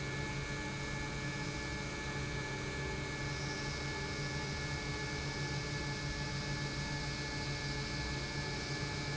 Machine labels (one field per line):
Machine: pump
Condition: normal